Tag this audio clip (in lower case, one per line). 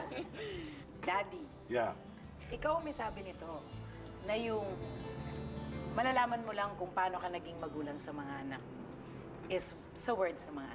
woman speaking